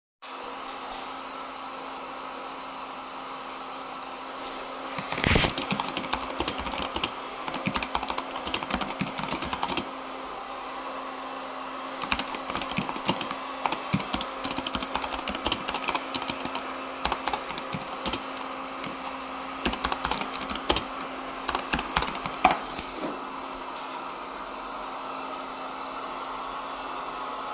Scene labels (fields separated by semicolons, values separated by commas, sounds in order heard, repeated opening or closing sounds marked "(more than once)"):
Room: office; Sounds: vacuum cleaner, keyboard typing